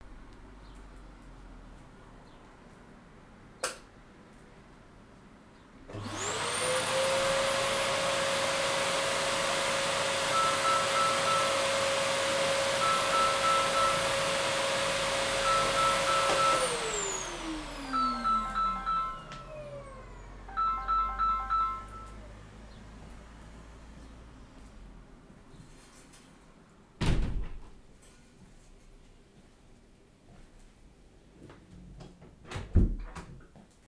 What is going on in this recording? The light was switched on and the vacuum cleaner was started with a partial overlap of a Samsung ringtone playing. The vacuum cleaner stopped, then the window was closed followed by the door being closed.